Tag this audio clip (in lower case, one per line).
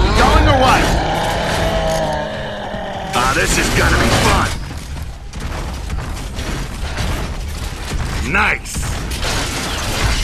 speech